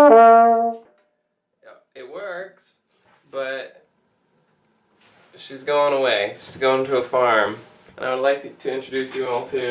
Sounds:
trombone, brass instrument

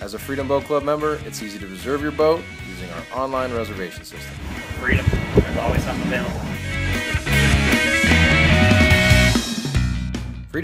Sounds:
music, speech

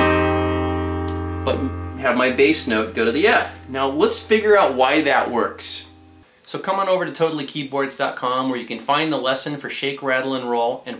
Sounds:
piano, musical instrument, music, speech, electric piano, keyboard (musical)

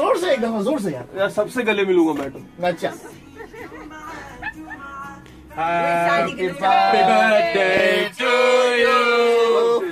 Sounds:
music, speech

